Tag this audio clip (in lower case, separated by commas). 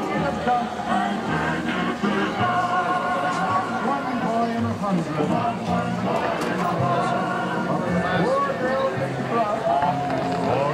music, speech